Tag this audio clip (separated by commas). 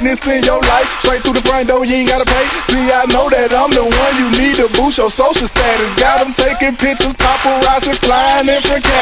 Music